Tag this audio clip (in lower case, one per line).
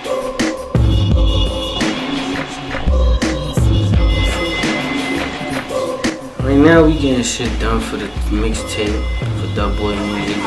music
speech